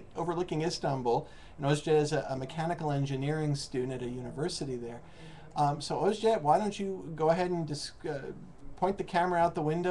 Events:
0.0s-9.9s: background noise
0.1s-1.2s: man speaking
1.2s-1.5s: breathing
1.5s-4.9s: man speaking
5.0s-5.5s: breathing
5.5s-5.6s: clicking
5.5s-7.1s: man speaking
7.1s-8.3s: man speaking
8.5s-8.6s: clicking
8.8s-9.9s: man speaking

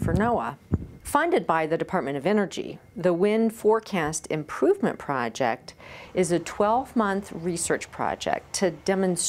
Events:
0.0s-9.2s: mechanisms
0.0s-9.2s: background noise
0.0s-0.2s: generic impact sounds
0.0s-0.5s: female speech
0.7s-0.9s: generic impact sounds
1.0s-2.7s: female speech
2.8s-5.6s: female speech
5.7s-6.1s: breathing
6.1s-9.2s: female speech

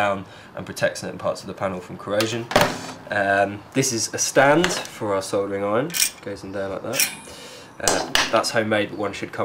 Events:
0.0s-0.2s: male speech
0.0s-9.4s: noise
0.6s-2.9s: male speech
3.0s-6.1s: male speech
6.3s-7.3s: male speech
7.8s-9.4s: male speech

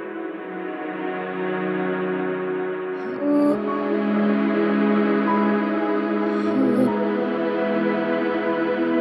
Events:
0.0s-9.0s: music

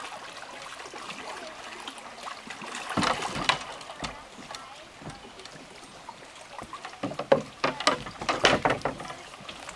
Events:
0.0s-5.8s: kayak
0.0s-9.7s: water
4.5s-4.5s: tick
8.3s-8.9s: thud

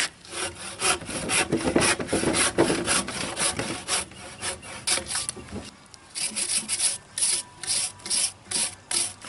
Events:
0.0s-0.1s: generic impact sounds
0.0s-9.2s: wind
0.2s-4.1s: sawing
0.9s-1.7s: generic impact sounds
1.9s-2.3s: generic impact sounds
2.5s-2.8s: generic impact sounds
3.0s-3.7s: generic impact sounds
4.0s-4.8s: bird call
4.4s-5.2s: sawing
4.8s-5.0s: generic impact sounds
5.3s-5.7s: generic impact sounds
5.4s-5.7s: surface contact
5.7s-6.2s: human voice
6.1s-6.9s: filing (rasp)
7.2s-7.4s: filing (rasp)
7.6s-7.8s: filing (rasp)
8.0s-8.3s: filing (rasp)
8.5s-8.7s: filing (rasp)
8.9s-9.2s: filing (rasp)

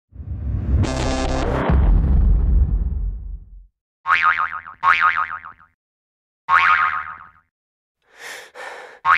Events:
0.1s-3.8s: sound effect
8.0s-9.0s: breathing

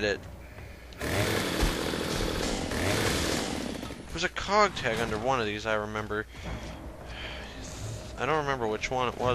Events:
0.0s-0.2s: male speech
0.0s-9.3s: video game sound
0.3s-0.9s: breathing
0.9s-3.9s: chainsaw
4.0s-4.5s: footsteps
4.1s-6.2s: male speech
4.8s-5.2s: thud
5.9s-6.8s: footsteps
6.3s-6.8s: breathing
6.4s-6.8s: thud
7.1s-8.1s: breathing
8.2s-9.3s: male speech

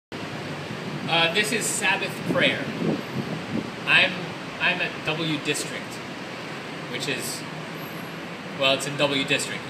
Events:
0.0s-9.6s: mechanisms
1.0s-2.7s: male speech
2.1s-3.7s: wind noise (microphone)
3.8s-4.2s: male speech
4.6s-6.0s: male speech
6.1s-6.2s: tick
6.8s-7.4s: male speech
8.6s-9.6s: male speech

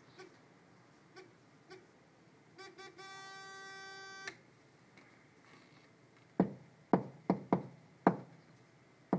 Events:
0.0s-9.1s: background noise
0.1s-0.3s: bleep
1.1s-1.2s: bleep
1.6s-1.8s: bleep
2.6s-4.3s: alarm
4.2s-4.4s: clicking
4.9s-5.1s: clicking
5.4s-5.9s: surface contact
6.1s-6.2s: generic impact sounds
6.3s-6.5s: knock
6.9s-7.0s: knock
7.3s-7.4s: knock
7.5s-7.6s: knock
8.0s-8.2s: knock
8.3s-8.6s: surface contact
9.1s-9.1s: knock

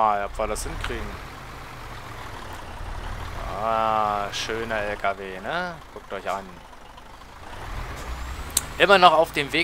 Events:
0.0s-9.6s: truck
7.5s-8.9s: revving
8.6s-8.7s: tick
8.8s-9.6s: man speaking

